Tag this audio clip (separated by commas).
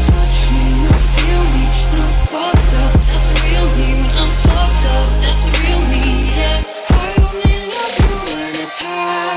Music